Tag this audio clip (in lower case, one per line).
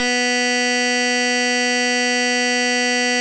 alarm